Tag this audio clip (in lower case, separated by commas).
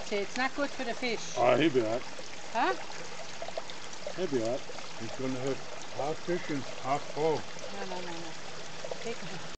speech